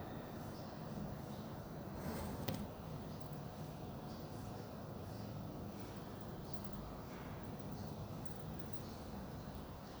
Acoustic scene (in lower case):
elevator